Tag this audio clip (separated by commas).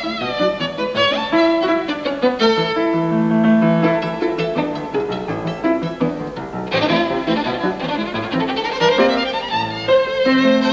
Violin, Bowed string instrument